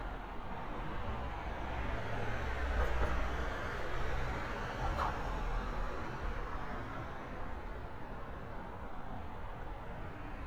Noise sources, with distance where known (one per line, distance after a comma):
medium-sounding engine